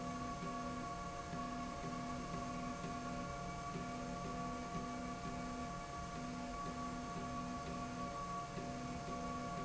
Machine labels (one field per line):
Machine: slide rail